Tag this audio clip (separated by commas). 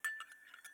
home sounds, Glass, Chink, dishes, pots and pans